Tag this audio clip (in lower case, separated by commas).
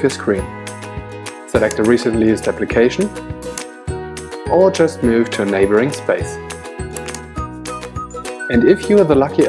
speech, music